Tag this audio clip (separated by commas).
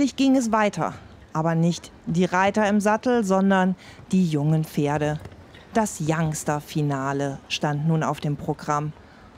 Clip-clop, Speech